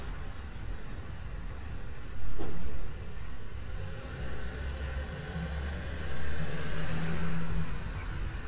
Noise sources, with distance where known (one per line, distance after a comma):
large-sounding engine